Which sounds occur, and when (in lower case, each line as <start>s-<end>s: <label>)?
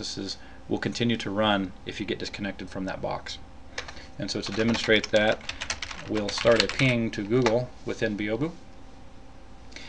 0.0s-0.4s: male speech
0.0s-9.8s: mechanisms
0.4s-0.7s: breathing
0.7s-1.7s: male speech
1.9s-3.4s: male speech
3.7s-4.0s: computer keyboard
3.7s-4.1s: breathing
4.2s-5.4s: male speech
4.5s-6.9s: computer keyboard
6.1s-7.7s: male speech
7.4s-7.6s: computer keyboard
7.9s-8.6s: male speech
9.7s-9.8s: breathing